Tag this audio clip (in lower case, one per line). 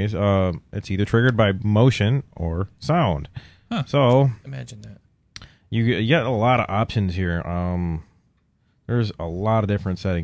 speech